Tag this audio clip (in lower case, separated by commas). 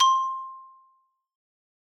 mallet percussion, musical instrument, percussion, music, marimba